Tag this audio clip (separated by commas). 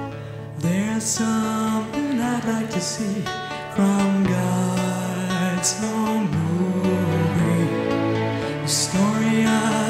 Music